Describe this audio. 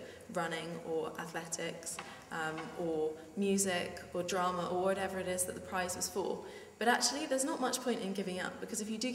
A woman is giving a speech